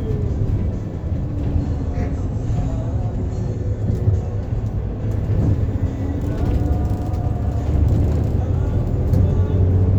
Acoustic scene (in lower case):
bus